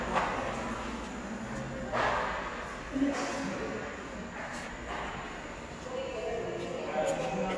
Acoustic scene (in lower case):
subway station